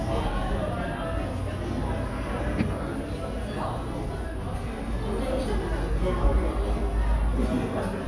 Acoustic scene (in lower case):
cafe